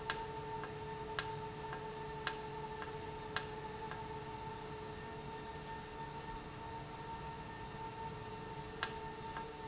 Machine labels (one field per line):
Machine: valve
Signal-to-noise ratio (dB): 0 dB